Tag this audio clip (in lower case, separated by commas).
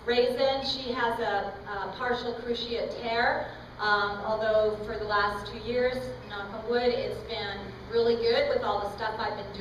speech